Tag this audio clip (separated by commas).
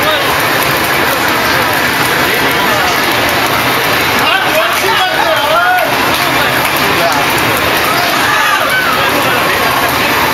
Speech